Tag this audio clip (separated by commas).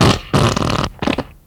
Fart